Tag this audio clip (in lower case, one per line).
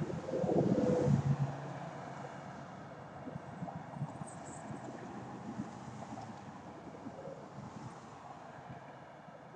coo
bird